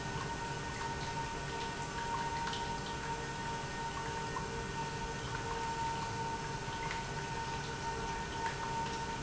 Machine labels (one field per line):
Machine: pump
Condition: normal